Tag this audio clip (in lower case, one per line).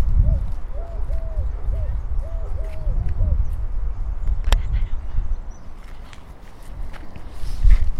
bird
wild animals
animal